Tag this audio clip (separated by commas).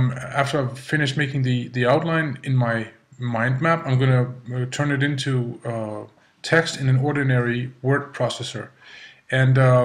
Speech